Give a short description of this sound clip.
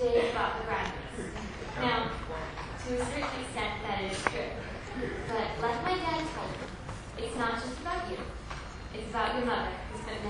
A woman is giving a speech